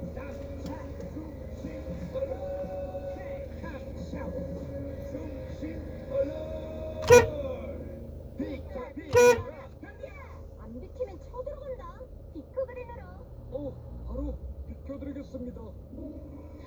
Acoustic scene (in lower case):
car